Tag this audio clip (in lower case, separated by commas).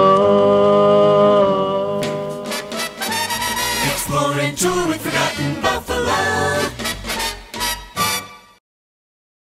music, jingle (music)